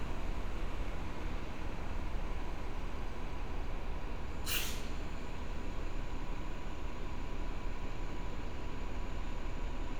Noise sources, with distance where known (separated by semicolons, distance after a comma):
engine of unclear size